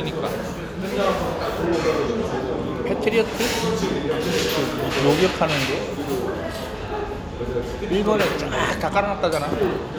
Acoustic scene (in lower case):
restaurant